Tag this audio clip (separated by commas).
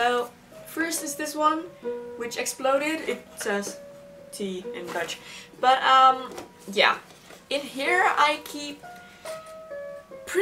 Speech, Music, inside a small room